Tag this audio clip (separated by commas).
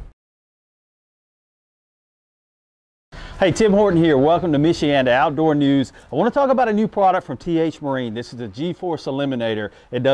Speech